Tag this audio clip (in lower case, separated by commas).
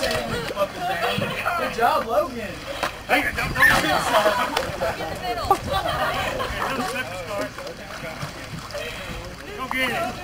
vehicle, boat, speech